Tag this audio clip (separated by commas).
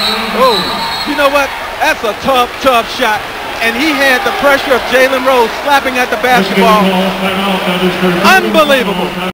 Speech